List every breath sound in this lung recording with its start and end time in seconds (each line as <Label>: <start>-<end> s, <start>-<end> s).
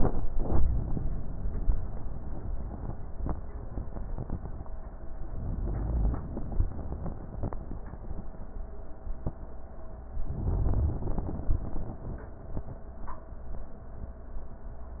Inhalation: 5.40-8.05 s, 10.14-12.79 s